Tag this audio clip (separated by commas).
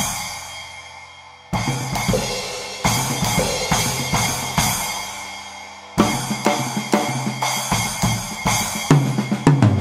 playing bass drum, Music, Bass drum